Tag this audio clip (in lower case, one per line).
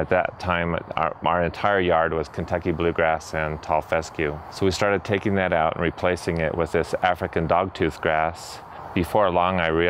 speech